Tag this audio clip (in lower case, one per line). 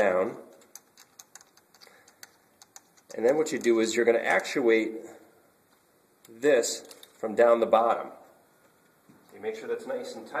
speech